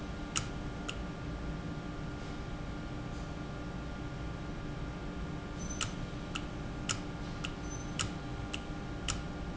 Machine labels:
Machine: valve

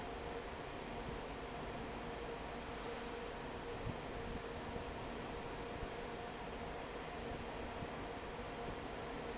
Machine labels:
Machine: fan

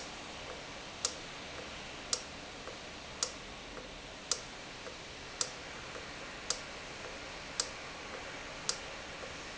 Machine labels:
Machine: valve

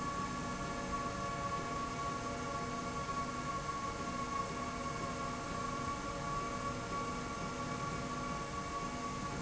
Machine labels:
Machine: slide rail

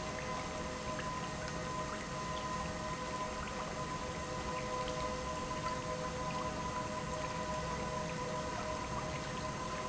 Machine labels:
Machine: pump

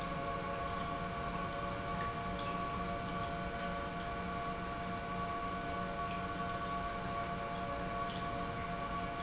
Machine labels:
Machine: pump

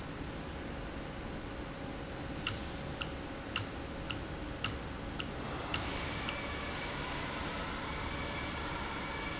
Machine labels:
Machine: valve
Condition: normal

